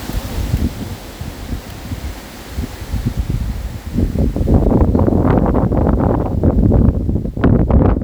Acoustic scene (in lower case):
park